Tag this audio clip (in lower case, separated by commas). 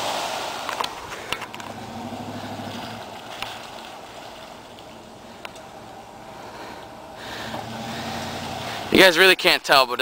speech, vehicle